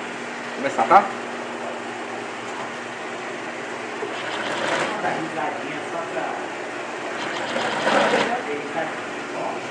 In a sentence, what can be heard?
A man speaking over a machine running